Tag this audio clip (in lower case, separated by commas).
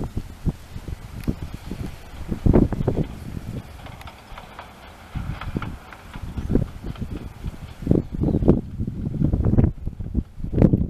clickety-clack, train, rail transport, train wagon